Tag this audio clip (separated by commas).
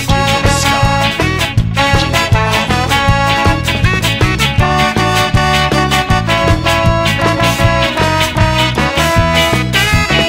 Music